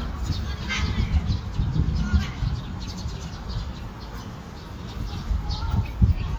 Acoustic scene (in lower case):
park